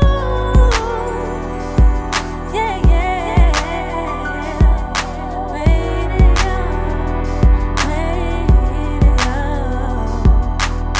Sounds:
hip hop music, music

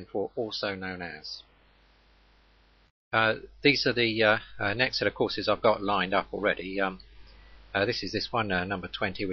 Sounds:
speech

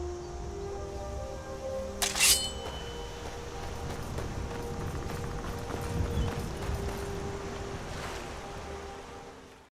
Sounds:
music

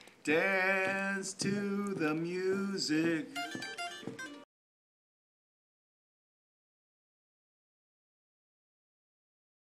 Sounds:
musical instrument, plucked string instrument, music, guitar

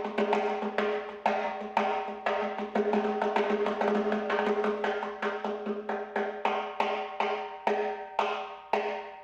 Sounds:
playing timbales

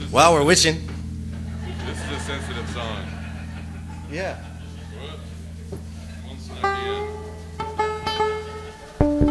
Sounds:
speech, music

